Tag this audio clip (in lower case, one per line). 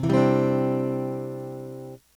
plucked string instrument
music
musical instrument
acoustic guitar
guitar
strum